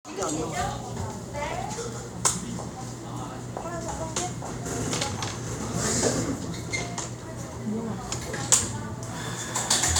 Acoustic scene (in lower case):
cafe